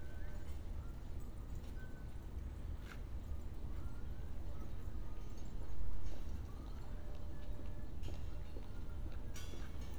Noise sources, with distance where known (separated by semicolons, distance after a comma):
background noise